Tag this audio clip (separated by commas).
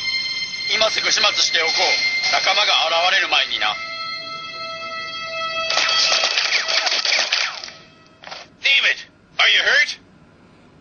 Speech